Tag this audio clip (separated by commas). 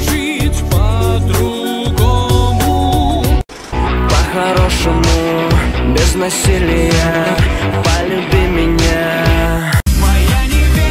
Music